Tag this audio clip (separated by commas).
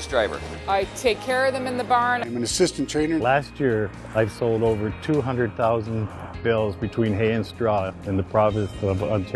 Music, Speech